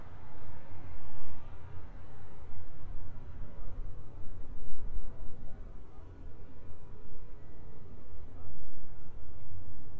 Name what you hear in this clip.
background noise